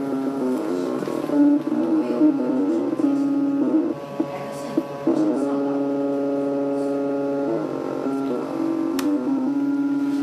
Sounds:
speech

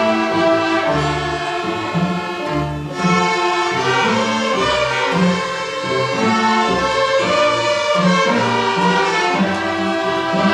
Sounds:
orchestra, music

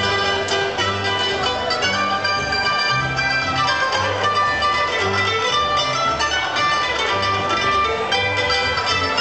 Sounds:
country, music

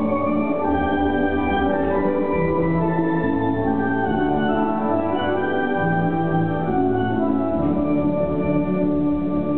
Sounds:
music

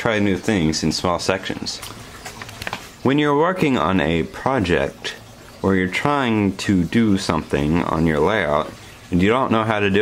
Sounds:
speech

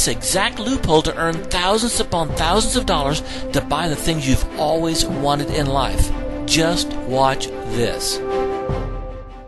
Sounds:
speech, music

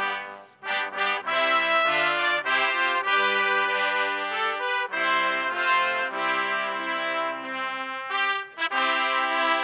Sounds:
trumpet, music

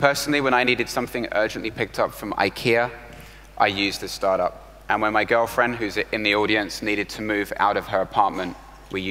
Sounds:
speech

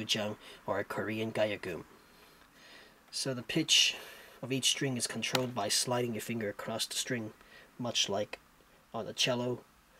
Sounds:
speech

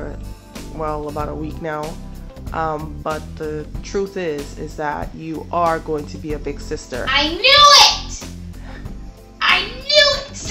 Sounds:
speech, music

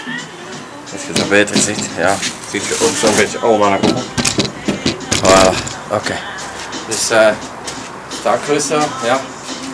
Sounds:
speech, music

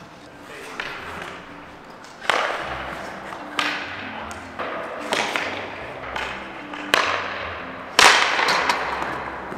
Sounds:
playing hockey

